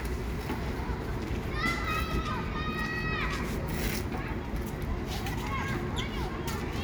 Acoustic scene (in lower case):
residential area